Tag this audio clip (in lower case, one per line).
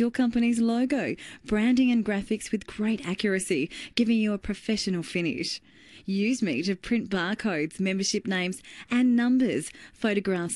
speech